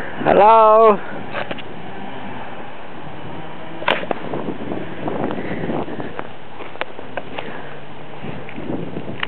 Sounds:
Speech

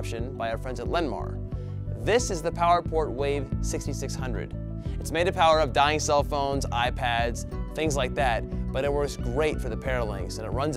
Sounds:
Music, Speech

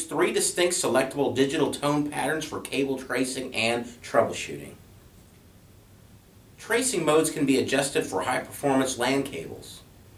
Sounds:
Speech

